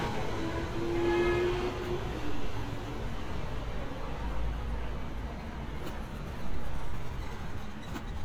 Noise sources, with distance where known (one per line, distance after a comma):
car horn, near